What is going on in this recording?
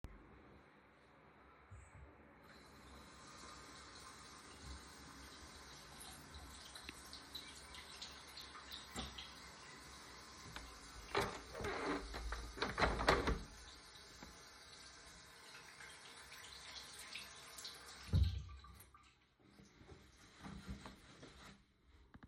While I was washing my hands I closed the window and dried of my hands.